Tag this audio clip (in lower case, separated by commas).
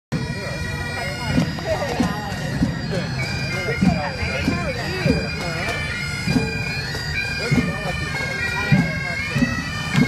playing bagpipes